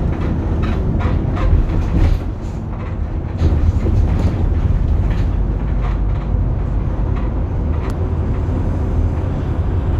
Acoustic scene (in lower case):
bus